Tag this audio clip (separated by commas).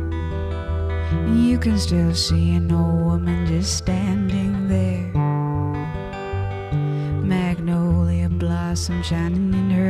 Singing, Music, Acoustic guitar